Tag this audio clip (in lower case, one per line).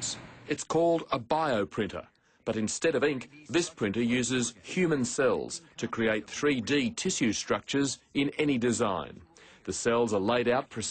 speech